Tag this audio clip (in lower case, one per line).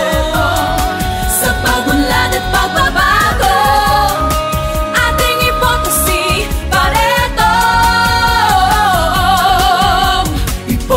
jingle (music)
music
music of asia